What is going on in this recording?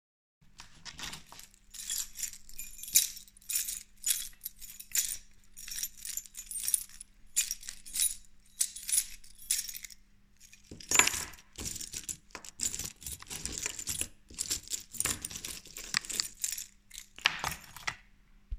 i play with the keychain sitting on a chair in the living room